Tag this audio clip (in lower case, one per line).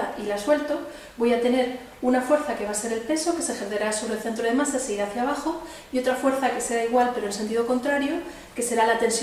speech